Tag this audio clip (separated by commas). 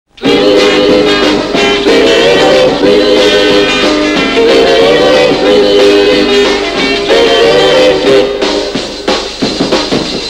Music, Drum, Singing